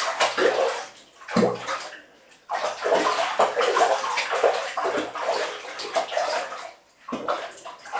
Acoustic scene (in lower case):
restroom